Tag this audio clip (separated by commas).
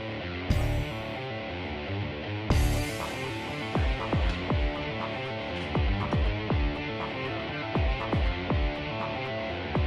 Music